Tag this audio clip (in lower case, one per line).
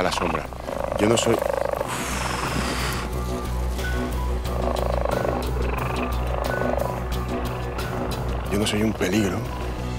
cheetah chirrup